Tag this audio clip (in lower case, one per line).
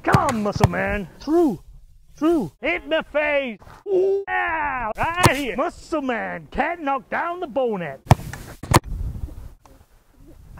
speech